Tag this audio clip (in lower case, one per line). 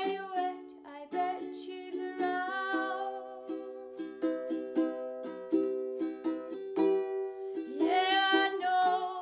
inside a small room
ukulele
singing
music